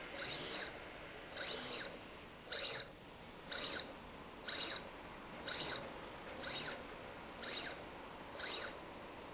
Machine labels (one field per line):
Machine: slide rail